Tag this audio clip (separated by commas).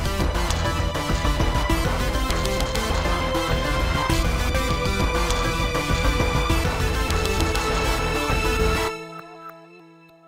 Music